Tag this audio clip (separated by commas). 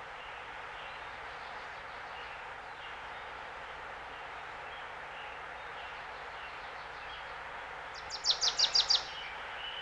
bird song, tweet, Bird